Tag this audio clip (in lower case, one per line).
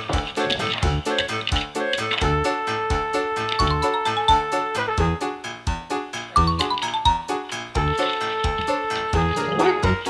music
pets
dog
animal